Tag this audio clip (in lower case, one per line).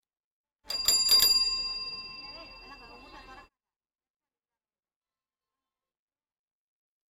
bell